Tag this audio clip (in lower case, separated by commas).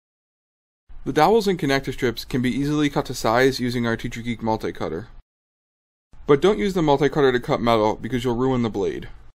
speech